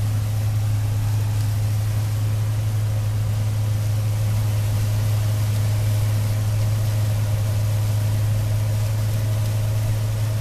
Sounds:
Vehicle

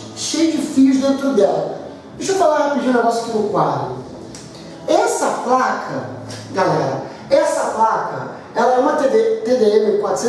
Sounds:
Speech

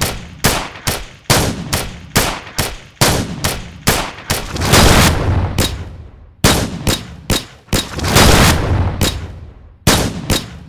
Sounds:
Gunshot

